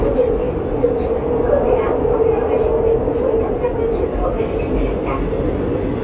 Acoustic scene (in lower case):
subway train